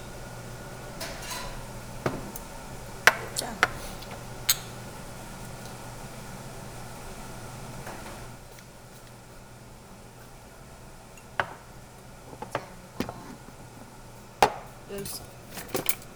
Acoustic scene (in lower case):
restaurant